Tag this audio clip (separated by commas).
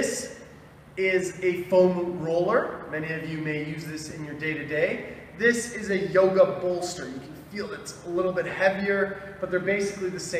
Speech